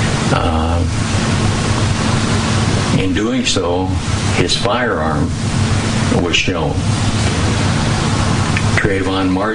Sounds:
vehicle, speech

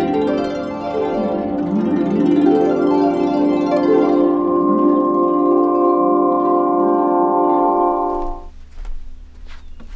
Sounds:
musical instrument, harp, music

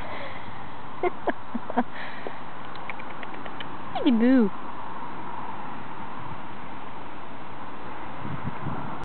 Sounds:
speech

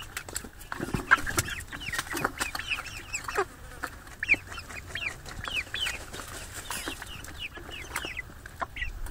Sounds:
bird, chicken, livestock

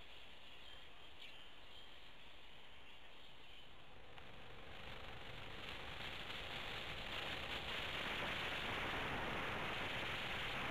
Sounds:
animal

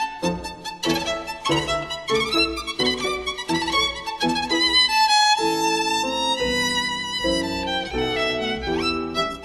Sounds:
music, musical instrument, violin

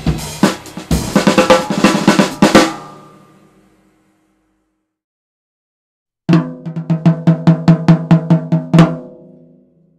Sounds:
playing drum kit, drum, music, snare drum, bass drum, drum kit, cymbal, hi-hat, musical instrument

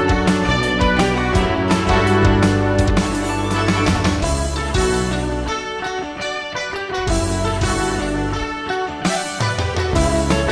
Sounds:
theme music, music

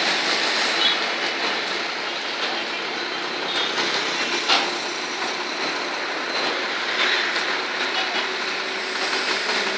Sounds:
vehicle, truck

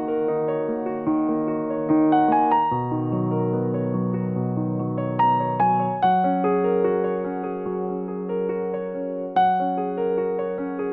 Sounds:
keyboard (musical), piano

